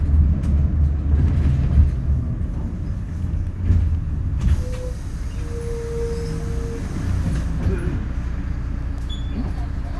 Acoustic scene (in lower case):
bus